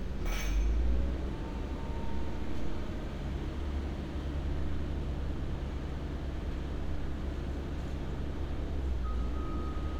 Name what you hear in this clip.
large-sounding engine, unidentified alert signal